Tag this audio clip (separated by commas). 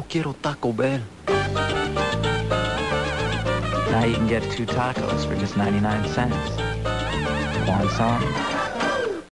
Speech, Music